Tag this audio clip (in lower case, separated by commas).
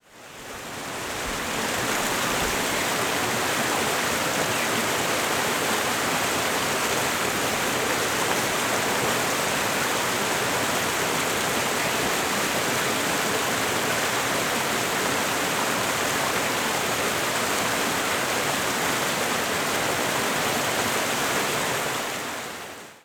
water, stream